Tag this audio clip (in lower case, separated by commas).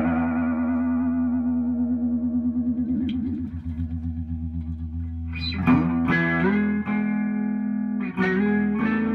electric guitar, music, inside a small room, plucked string instrument, musical instrument, effects unit